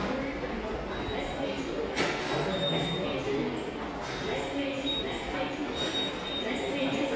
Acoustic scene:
subway station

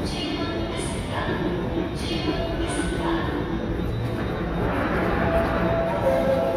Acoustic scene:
subway station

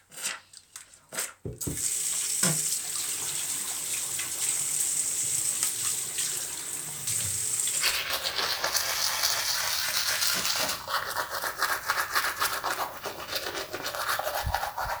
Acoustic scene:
restroom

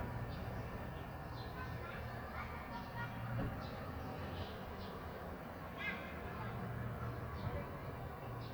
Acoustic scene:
residential area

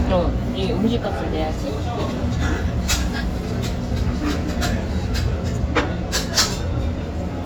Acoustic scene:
restaurant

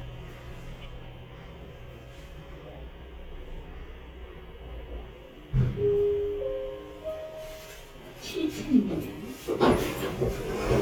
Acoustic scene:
elevator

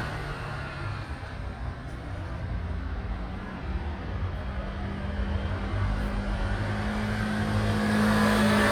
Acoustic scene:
street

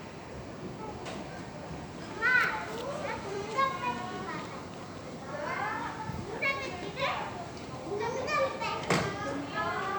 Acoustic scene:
park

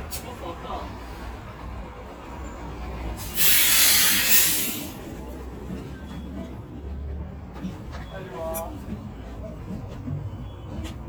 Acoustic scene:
street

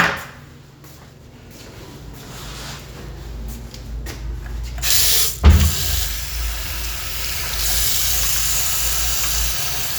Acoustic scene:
restroom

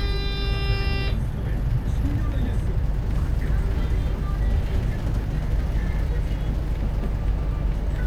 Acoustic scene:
bus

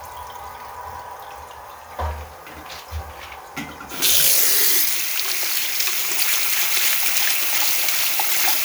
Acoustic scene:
restroom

